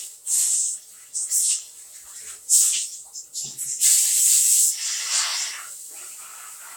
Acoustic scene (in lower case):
restroom